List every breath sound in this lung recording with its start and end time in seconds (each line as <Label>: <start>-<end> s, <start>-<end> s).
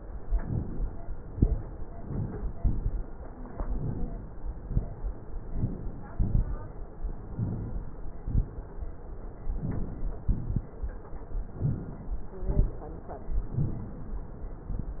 Inhalation: 0.24-1.04 s, 1.98-2.60 s, 3.59-4.27 s, 5.34-6.02 s, 7.24-7.92 s, 9.56-10.24 s, 11.55-12.23 s
Exhalation: 1.18-1.80 s, 2.58-3.11 s, 4.45-5.13 s, 6.12-6.80 s, 8.17-8.55 s, 10.28-10.66 s, 12.37-12.75 s
Crackles: 2.58-3.11 s, 6.12-6.50 s